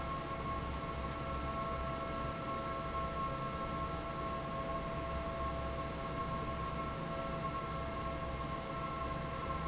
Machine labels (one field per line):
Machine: fan